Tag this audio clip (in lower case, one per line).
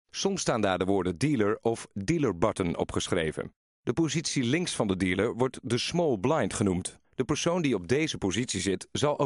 speech